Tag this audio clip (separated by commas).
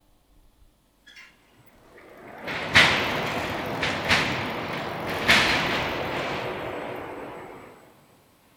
Mechanisms